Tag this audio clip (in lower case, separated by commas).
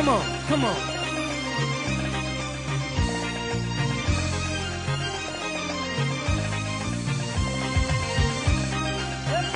independent music, speech, music